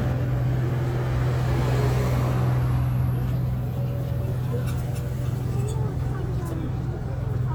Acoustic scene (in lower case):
street